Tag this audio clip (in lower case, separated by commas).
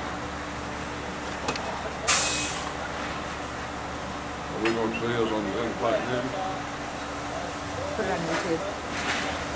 speech, vehicle